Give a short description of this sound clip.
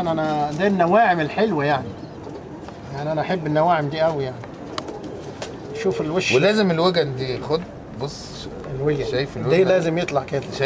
Two men speaking to each other with a bird in the background